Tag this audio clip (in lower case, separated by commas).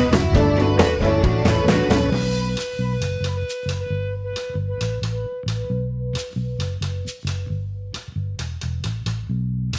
blues, music